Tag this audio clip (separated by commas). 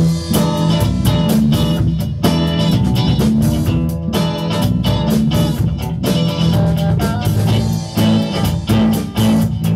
Music